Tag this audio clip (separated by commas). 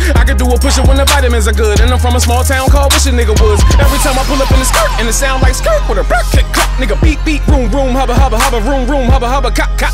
rapping